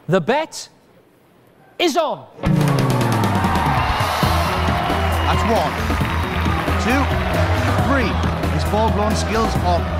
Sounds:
Speech, Music

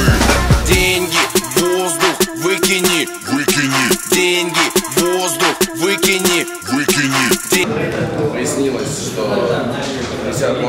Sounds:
Speech, Music

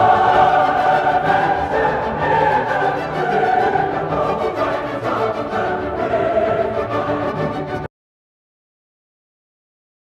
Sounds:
Music

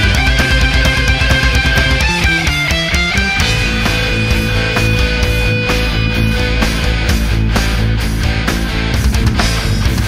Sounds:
Music, Heavy metal, Progressive rock

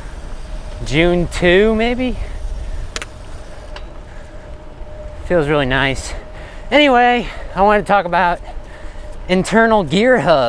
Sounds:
Bicycle, Speech, Vehicle

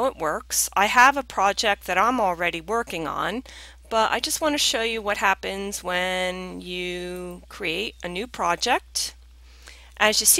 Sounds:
Speech

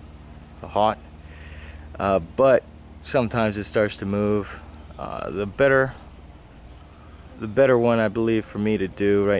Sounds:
Speech

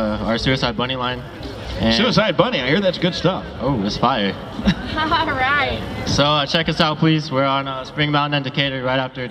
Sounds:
Speech

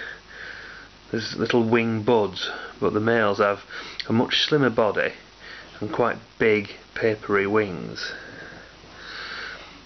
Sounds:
Speech

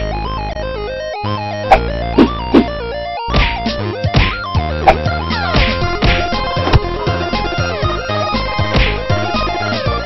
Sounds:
Video game music, Music

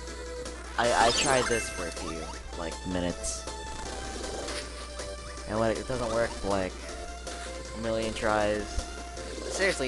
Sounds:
Speech, Music

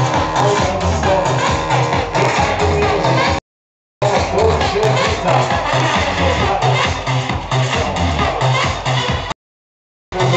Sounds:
House music, Music

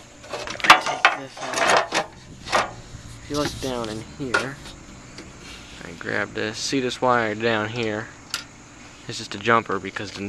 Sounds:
Speech

